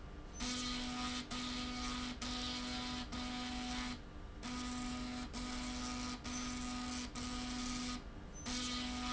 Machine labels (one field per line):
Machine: slide rail